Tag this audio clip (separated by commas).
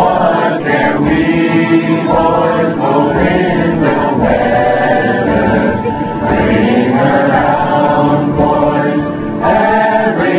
Music